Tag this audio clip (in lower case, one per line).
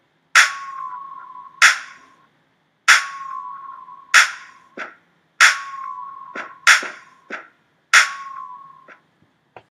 music